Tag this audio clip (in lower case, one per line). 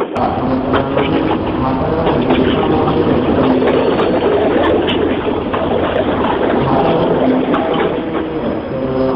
speech